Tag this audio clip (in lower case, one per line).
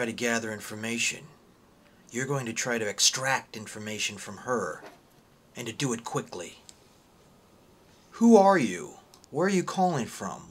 speech